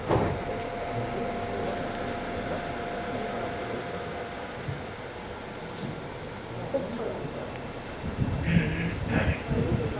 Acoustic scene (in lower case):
subway train